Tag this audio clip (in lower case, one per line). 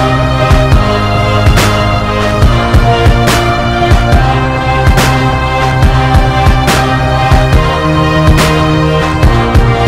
musical instrument
violin
music